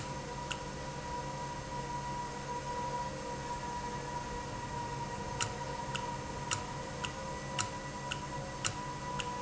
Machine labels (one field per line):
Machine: valve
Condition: normal